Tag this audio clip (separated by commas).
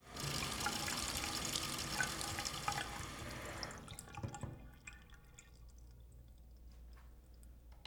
Domestic sounds, Sink (filling or washing)